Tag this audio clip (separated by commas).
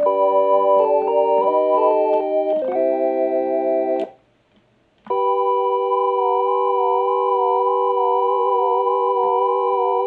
Music, Synthesizer, Musical instrument